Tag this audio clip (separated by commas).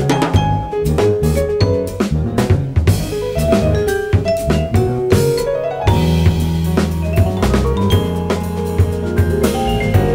playing vibraphone